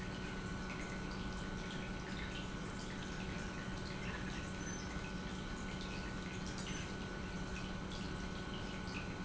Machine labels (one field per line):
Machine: pump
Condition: normal